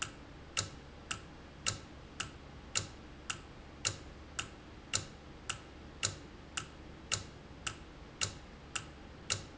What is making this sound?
valve